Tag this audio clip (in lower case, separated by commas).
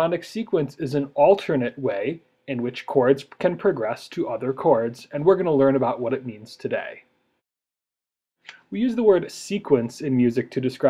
speech